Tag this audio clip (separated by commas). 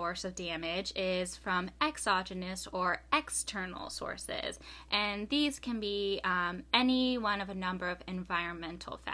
Speech